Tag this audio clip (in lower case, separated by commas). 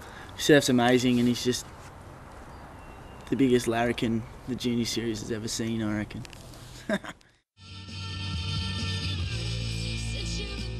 speech, music